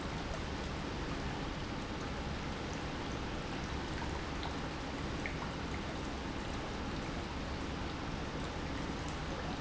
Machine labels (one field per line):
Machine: pump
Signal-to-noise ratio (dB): -6 dB